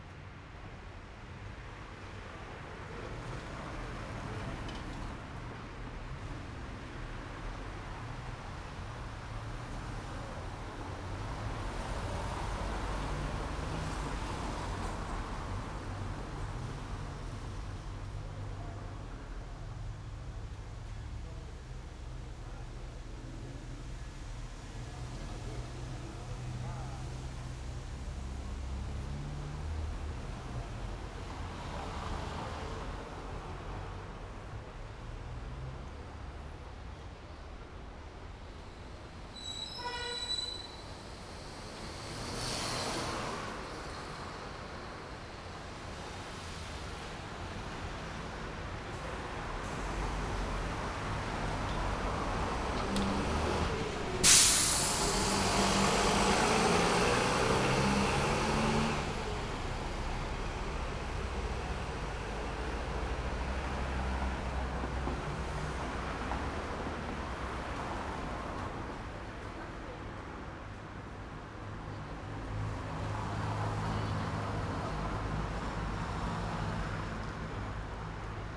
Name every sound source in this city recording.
car, motorcycle, bus, car wheels rolling, car engine accelerating, car engine idling, motorcycle engine accelerating, bus brakes, bus engine idling, bus compressor, bus engine accelerating, people talking